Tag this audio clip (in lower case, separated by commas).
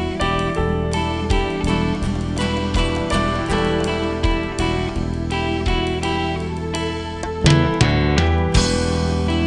music